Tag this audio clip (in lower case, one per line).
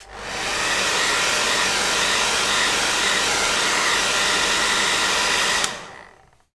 home sounds